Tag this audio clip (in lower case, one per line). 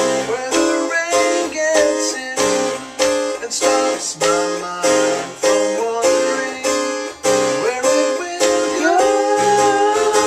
playing harpsichord